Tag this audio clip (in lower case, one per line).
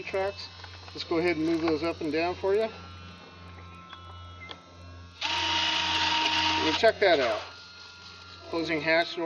speech